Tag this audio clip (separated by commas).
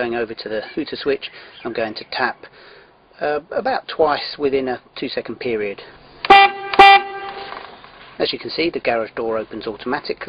Speech